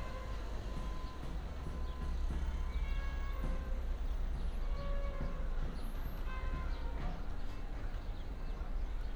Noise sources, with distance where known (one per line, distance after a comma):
music from an unclear source